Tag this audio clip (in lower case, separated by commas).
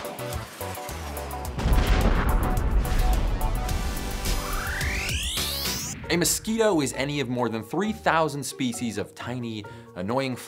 speech, music